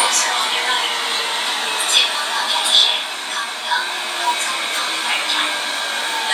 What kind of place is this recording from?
subway train